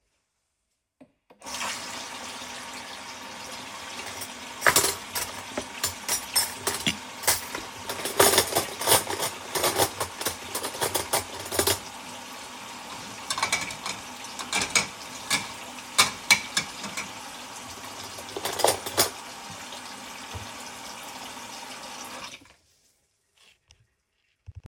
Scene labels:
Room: kitchen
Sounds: running water, cutlery and dishes

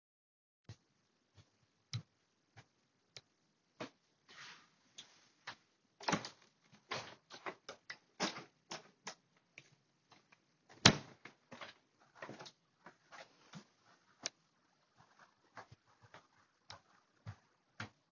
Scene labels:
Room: living room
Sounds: footsteps, window (more than once)

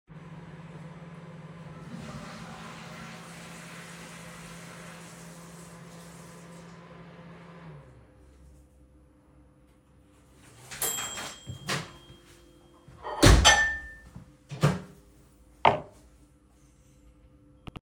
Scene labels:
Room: kitchen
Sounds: microwave, toilet flushing, running water, cutlery and dishes

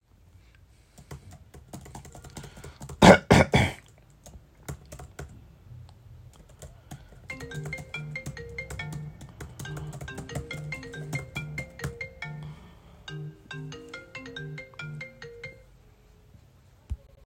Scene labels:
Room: office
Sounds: keyboard typing, phone ringing

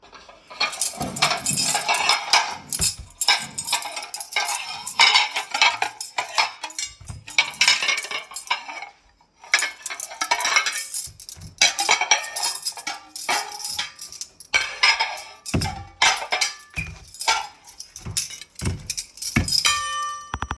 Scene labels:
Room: kitchen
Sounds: cutlery and dishes

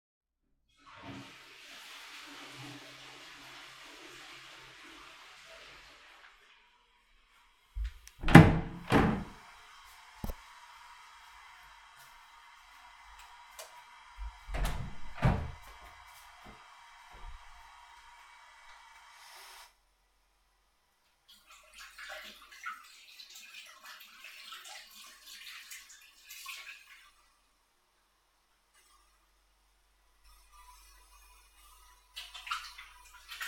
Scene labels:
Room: bathroom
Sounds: toilet flushing, door (more than once), light switch, running water

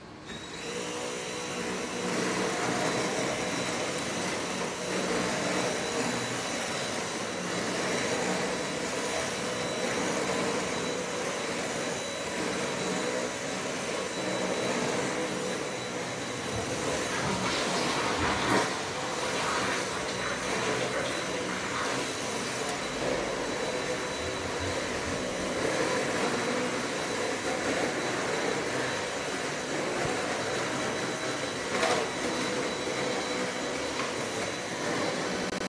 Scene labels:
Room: hallway, bathroom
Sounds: vacuum cleaner, toilet flushing

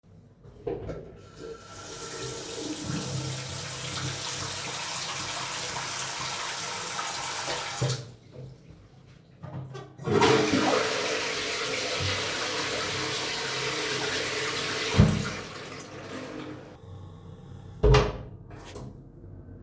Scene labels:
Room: bathroom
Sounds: running water, toilet flushing, door

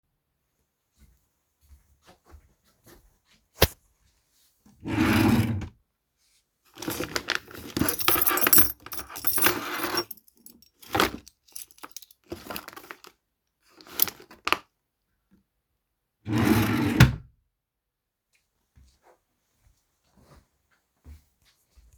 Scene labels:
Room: bedroom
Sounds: footsteps, wardrobe or drawer (more than once), keys

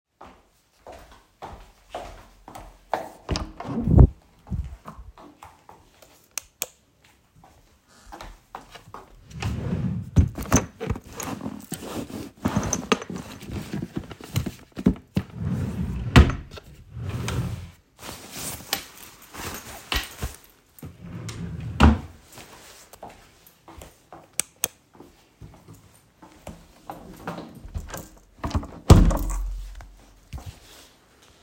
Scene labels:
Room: hallway, bedroom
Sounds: footsteps, door (more than once), light switch, wardrobe or drawer (more than once)

